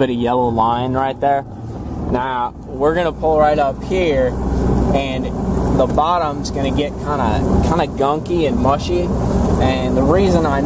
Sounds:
Speech

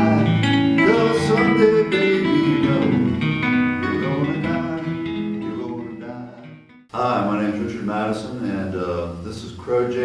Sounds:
Speech, Music

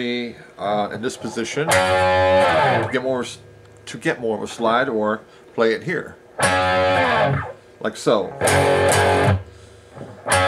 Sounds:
Acoustic guitar, Guitar, Speech, Plucked string instrument, Electric guitar, Strum, Music, Musical instrument

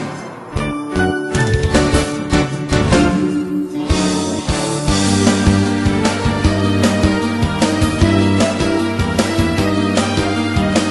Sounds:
Music

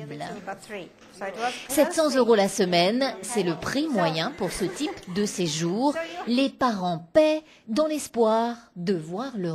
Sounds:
Speech

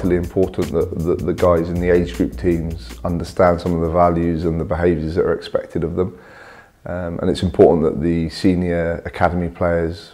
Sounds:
Speech, Music

